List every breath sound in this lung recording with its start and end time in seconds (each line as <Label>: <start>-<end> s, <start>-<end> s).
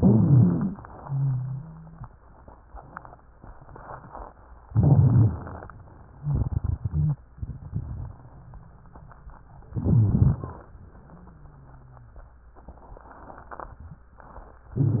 Inhalation: 0.00-0.82 s, 4.68-5.68 s, 9.72-10.70 s, 14.72-15.00 s
Exhalation: 0.98-2.07 s, 6.22-7.21 s, 11.02-12.11 s
Wheeze: 0.98-2.07 s, 11.02-12.11 s
Stridor: 0.00-0.82 s
Rhonchi: 4.68-5.68 s, 14.72-15.00 s
Crackles: 6.22-7.21 s, 9.72-10.70 s